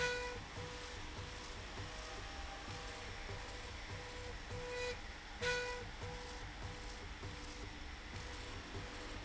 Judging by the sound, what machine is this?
slide rail